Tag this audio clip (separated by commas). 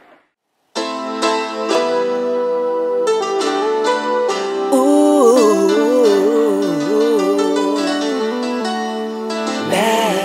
Soundtrack music, Traditional music, Music, Blues